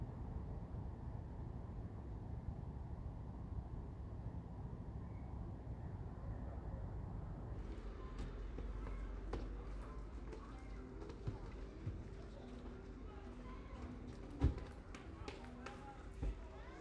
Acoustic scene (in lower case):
residential area